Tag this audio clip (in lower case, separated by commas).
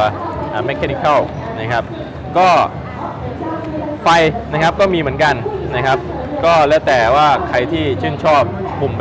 computer keyboard, speech, inside a public space